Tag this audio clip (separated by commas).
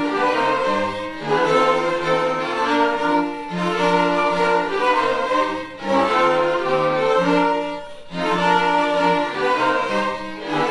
Violin, Music, Orchestra